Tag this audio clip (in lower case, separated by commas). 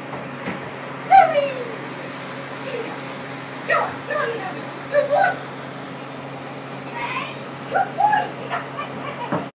speech